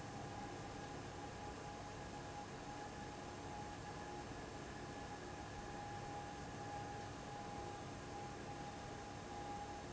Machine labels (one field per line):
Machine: fan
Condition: abnormal